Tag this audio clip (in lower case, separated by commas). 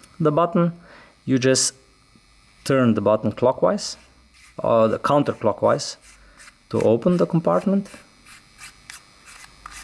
electric shaver, speech